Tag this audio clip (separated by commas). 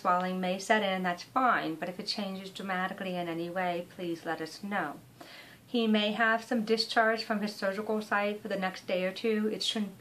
Speech